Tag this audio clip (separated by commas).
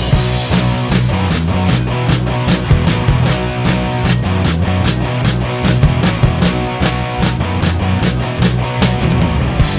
Music, Pop music